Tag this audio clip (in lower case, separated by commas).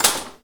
dishes, pots and pans, domestic sounds